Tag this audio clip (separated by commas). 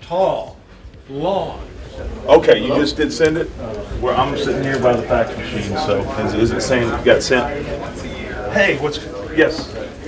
Speech